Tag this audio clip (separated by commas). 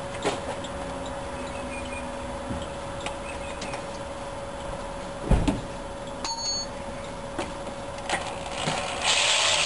car engine starting